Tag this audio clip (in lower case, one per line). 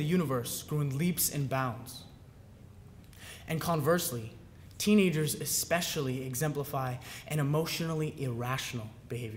speech
man speaking
monologue